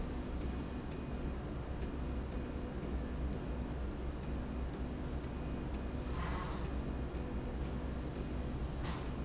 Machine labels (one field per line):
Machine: slide rail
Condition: normal